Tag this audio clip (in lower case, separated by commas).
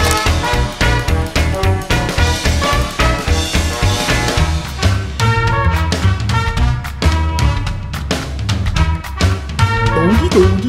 music